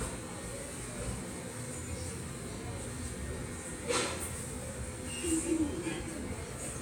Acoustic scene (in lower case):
subway station